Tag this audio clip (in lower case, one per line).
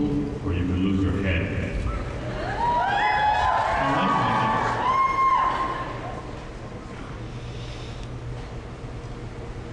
speech